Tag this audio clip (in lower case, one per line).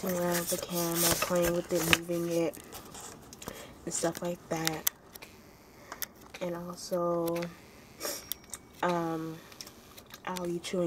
speech